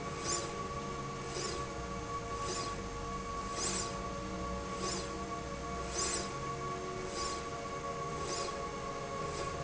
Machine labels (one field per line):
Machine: slide rail